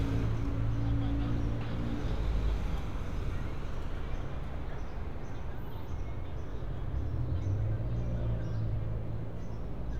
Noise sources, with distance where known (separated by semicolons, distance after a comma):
person or small group talking